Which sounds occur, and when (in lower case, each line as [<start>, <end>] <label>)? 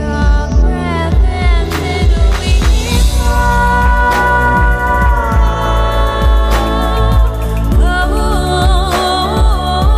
[0.00, 9.95] female singing
[0.00, 9.95] music